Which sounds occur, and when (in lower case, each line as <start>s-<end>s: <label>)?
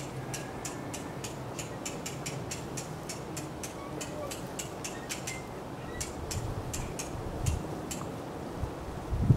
0.0s-9.3s: wind
0.2s-1.1s: mechanisms
5.8s-6.0s: generic impact sounds
7.9s-8.0s: tick
7.9s-8.0s: tap